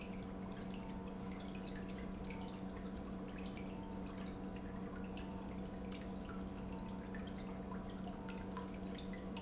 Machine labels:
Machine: pump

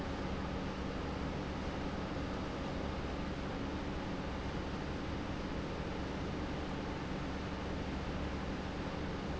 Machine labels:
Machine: pump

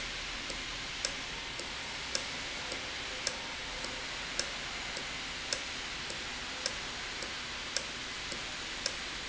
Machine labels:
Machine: valve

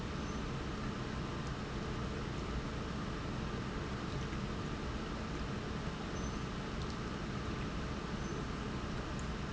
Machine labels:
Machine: pump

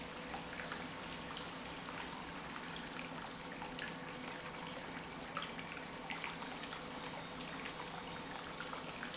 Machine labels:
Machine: pump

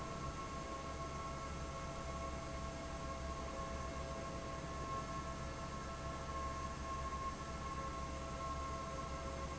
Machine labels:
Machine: fan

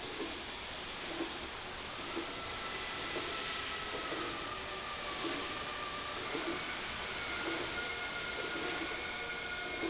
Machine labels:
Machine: slide rail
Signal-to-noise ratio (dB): -6 dB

